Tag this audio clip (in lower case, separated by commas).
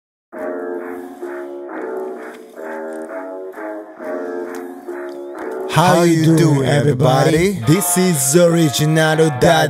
speech, music